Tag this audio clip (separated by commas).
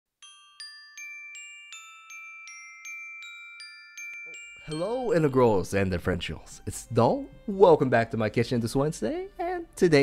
Speech, Music, Glockenspiel